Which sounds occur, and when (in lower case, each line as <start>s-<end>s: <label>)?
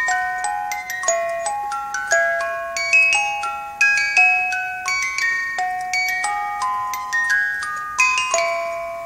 0.0s-9.0s: mechanisms
0.0s-9.0s: music